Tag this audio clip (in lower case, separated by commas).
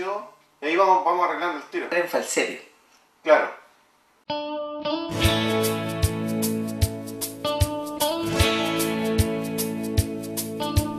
speech, music